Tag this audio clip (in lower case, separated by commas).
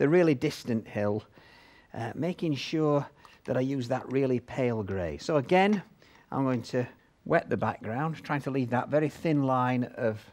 speech